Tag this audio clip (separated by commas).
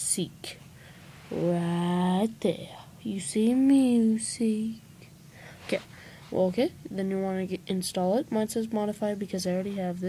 Speech